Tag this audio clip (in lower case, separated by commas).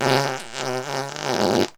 fart